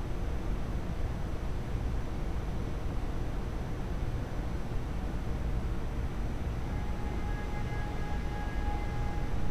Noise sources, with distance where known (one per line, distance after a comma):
car horn, far